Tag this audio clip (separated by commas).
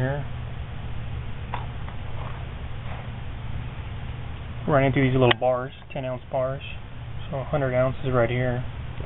Speech, inside a small room